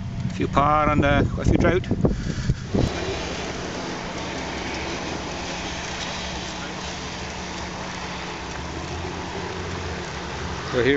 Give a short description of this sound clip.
Moderate wind and person speaking followed by distant construction noise